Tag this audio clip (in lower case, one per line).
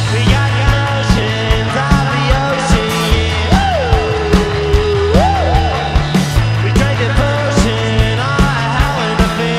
music